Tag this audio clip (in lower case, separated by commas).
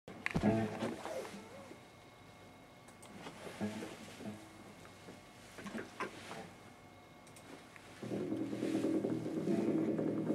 music, electric guitar